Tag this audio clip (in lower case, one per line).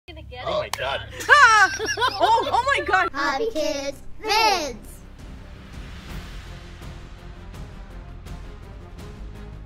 music
speech